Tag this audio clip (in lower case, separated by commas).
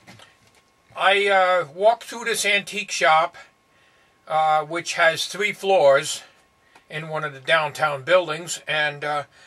speech